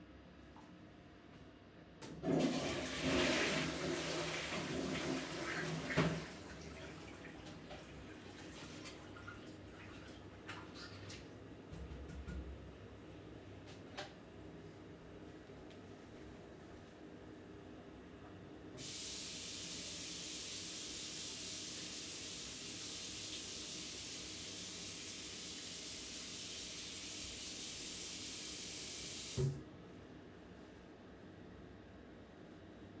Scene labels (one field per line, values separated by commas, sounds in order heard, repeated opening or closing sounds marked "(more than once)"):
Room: bathroom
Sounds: toilet flushing, running water